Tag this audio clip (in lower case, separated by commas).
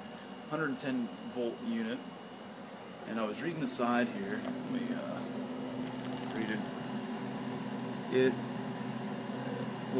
speech